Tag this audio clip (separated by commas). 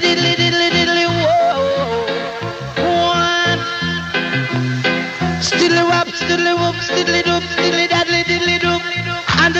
Music